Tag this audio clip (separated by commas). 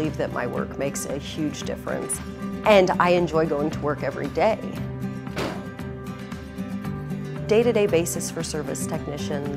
Music, Speech